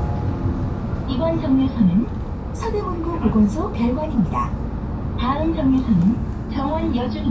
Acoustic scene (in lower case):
bus